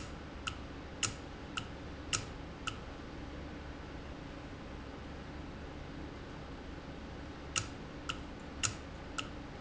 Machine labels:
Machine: valve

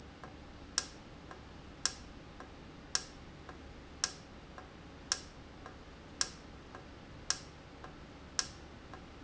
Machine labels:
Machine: valve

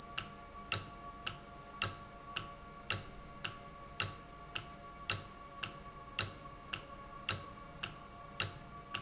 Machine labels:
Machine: valve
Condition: normal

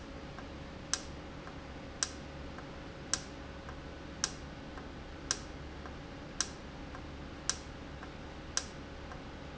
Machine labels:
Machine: valve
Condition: normal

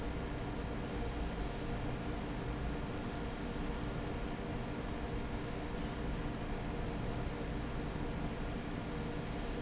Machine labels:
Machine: fan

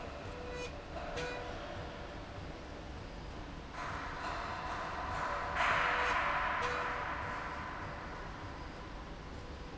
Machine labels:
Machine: slide rail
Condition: normal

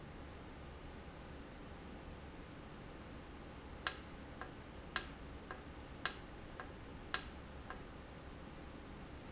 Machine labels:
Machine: valve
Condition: normal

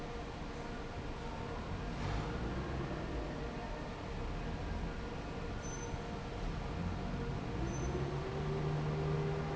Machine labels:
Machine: fan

